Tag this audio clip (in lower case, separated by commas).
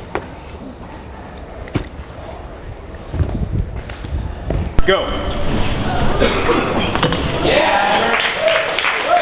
outside, urban or man-made, run, speech